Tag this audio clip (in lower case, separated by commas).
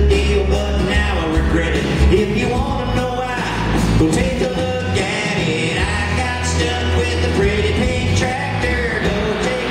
male singing, music